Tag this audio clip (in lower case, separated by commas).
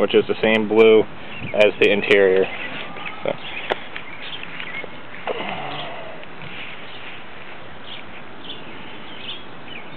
outside, rural or natural, speech